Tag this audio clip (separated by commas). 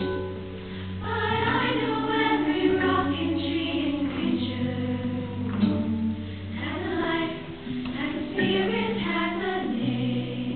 Music, Choir